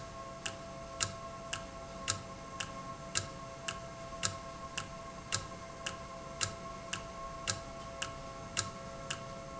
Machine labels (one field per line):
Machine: valve